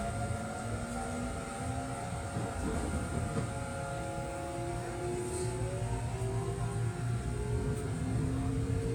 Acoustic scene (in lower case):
subway train